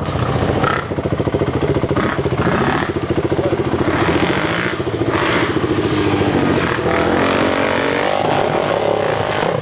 A dirt bike engine rumbles and then revs up